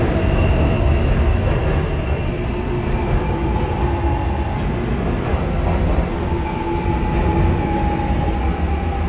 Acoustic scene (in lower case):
subway train